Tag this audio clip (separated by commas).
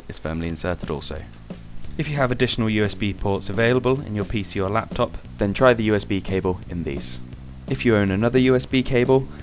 Speech, Music